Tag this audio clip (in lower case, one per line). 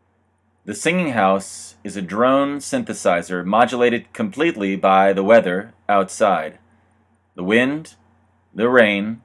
speech